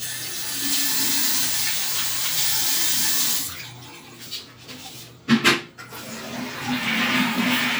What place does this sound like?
restroom